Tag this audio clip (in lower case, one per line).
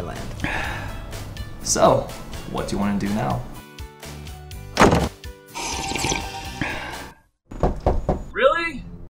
music
gurgling
speech